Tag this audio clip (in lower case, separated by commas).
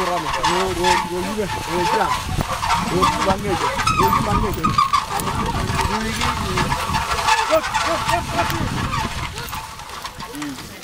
speech